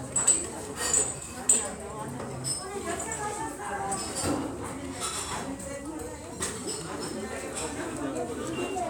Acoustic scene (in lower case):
restaurant